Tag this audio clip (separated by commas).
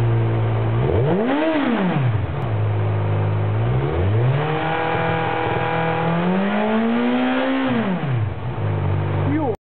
Speech, Clatter